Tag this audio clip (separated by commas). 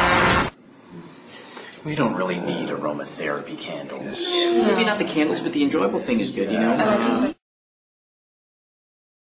Motor vehicle (road), Speech